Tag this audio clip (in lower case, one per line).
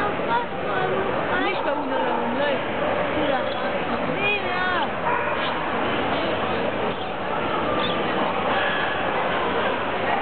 domestic animals
dog
speech
animal